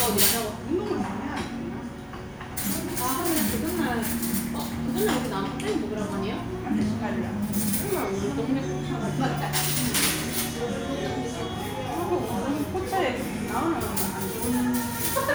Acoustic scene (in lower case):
restaurant